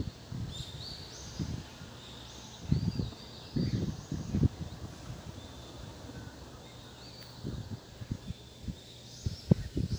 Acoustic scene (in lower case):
park